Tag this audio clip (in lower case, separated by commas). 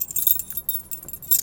keys jangling, domestic sounds